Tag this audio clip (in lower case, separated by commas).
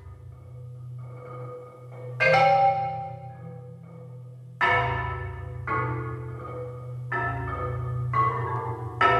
mallet percussion, glockenspiel, xylophone